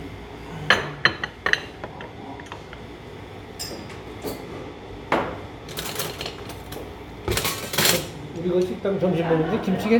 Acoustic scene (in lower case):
restaurant